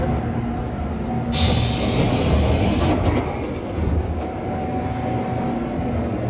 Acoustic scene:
subway train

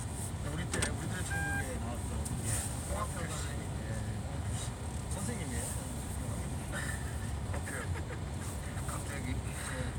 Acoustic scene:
car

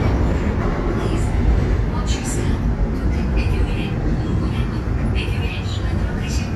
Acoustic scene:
subway train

